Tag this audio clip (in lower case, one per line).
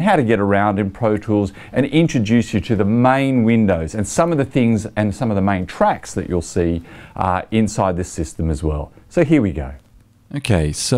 speech